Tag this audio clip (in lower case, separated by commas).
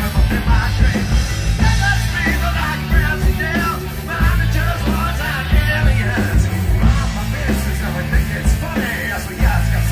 music, singing